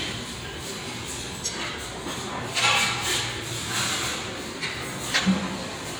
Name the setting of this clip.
restaurant